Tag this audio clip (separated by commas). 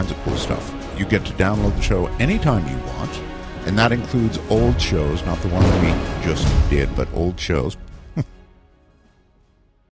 Music, Speech